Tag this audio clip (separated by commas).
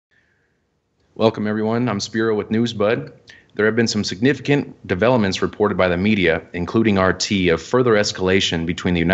Speech